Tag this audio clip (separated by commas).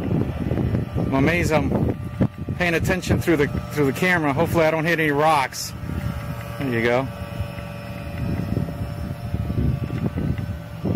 Motorboat